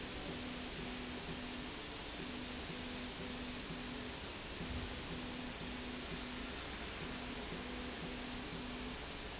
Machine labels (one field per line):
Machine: slide rail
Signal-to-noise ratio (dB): 0 dB